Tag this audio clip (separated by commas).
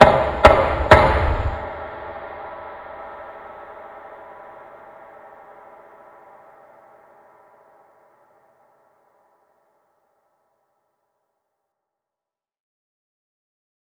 Door, Domestic sounds, Knock